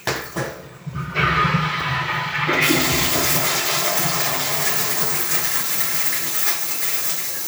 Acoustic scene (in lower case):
restroom